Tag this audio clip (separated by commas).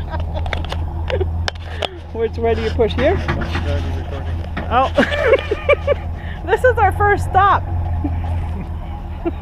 Speech